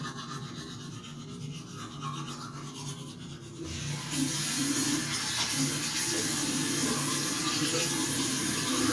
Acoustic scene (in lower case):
restroom